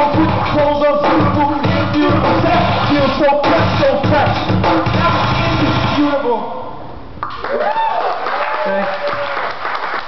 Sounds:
Speech, Music

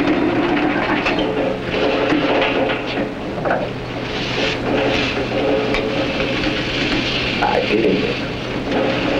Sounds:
Speech

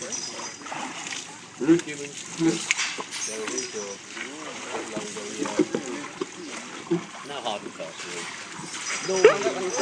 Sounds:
Speech, Splash, Water

